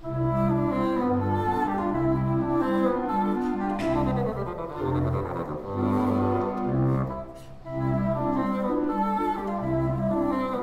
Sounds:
playing bassoon

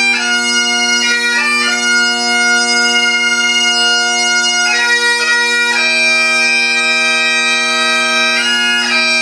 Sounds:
playing bagpipes

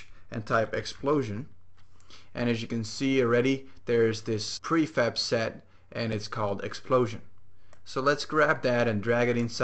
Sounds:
speech

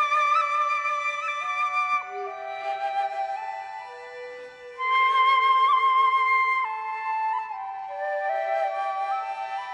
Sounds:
wind instrument
flute

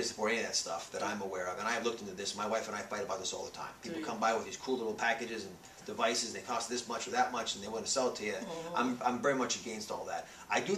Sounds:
speech

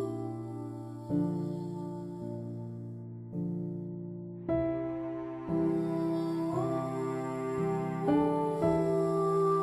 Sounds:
background music
music

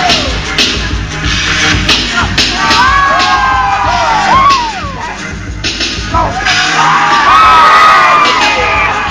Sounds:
speech
music

